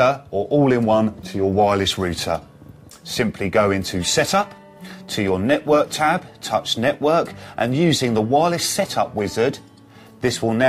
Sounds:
music, speech

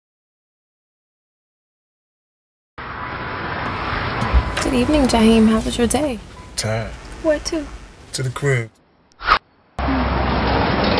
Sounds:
speech

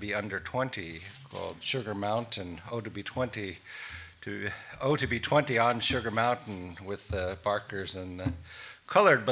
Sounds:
speech

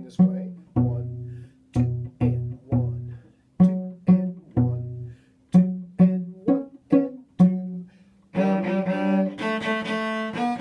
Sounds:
playing cello, cello, bowed string instrument

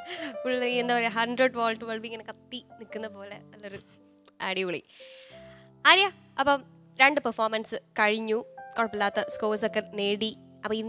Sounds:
speech, music

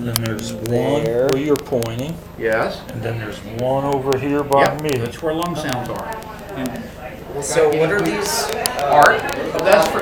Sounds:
speech

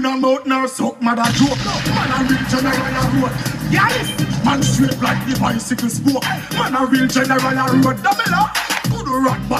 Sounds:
speech, music

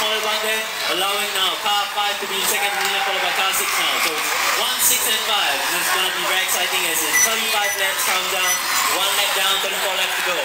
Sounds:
speech

